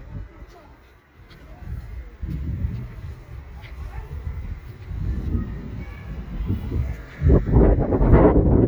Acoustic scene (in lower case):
residential area